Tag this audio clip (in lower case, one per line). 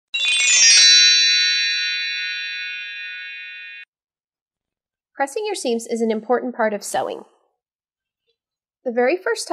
speech